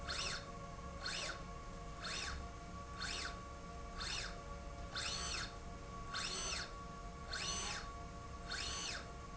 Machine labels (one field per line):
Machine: slide rail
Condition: normal